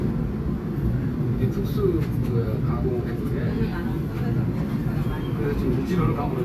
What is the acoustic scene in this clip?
subway train